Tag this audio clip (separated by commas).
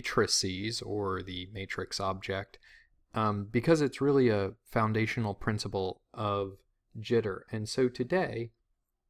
Speech